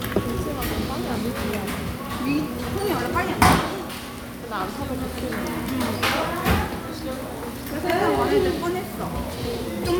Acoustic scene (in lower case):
restaurant